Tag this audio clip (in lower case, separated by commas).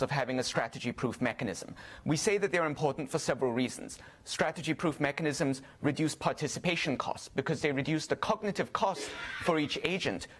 speech